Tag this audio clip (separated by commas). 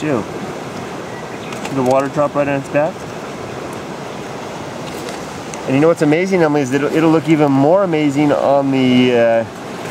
Rustle, Rain